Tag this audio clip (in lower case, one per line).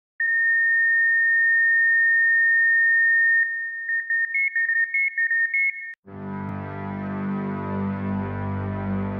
music
electronic music